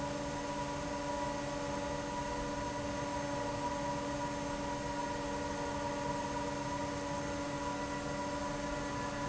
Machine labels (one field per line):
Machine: fan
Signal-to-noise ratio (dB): -6 dB